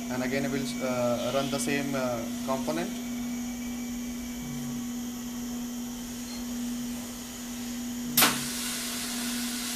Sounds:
inside a small room
speech

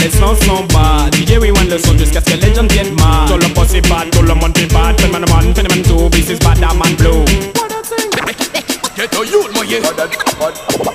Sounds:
music
afrobeat

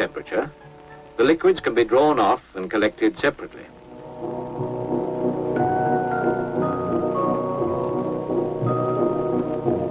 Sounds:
music
speech

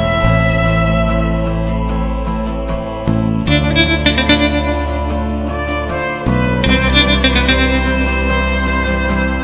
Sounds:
music

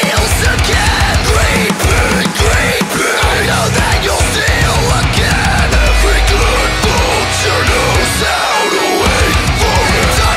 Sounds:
music

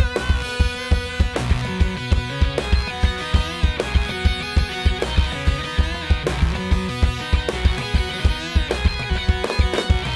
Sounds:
music

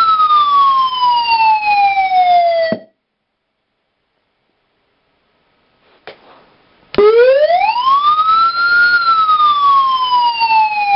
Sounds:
siren

